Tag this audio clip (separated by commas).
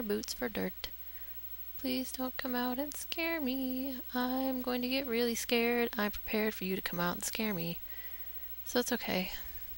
Speech